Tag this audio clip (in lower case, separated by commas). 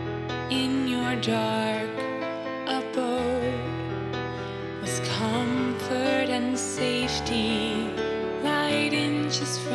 music